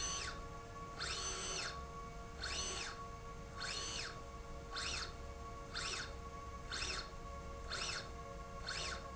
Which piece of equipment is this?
slide rail